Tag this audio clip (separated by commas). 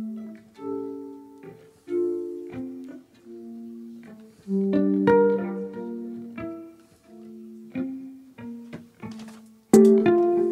Pizzicato, Musical instrument, Violin, Music